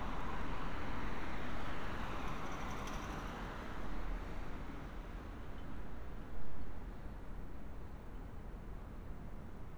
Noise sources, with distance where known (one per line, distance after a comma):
background noise